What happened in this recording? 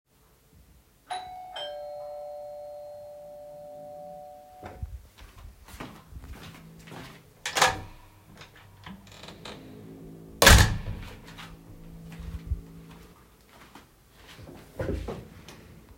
I carried the device in my hand while standing away from the entrance. First, the doorbell rang. Then I walked toward the door, so footsteps were audible. After that, I opened the door. A drill sound was present in the background as a non-target sound.